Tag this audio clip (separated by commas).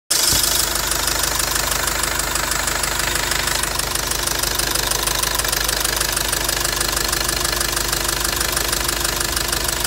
car engine knocking